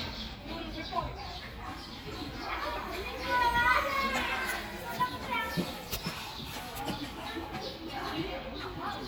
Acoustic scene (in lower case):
park